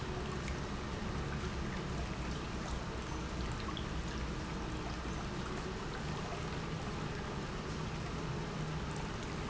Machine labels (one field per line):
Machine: pump